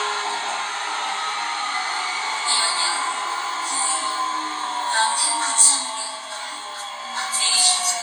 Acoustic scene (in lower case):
subway train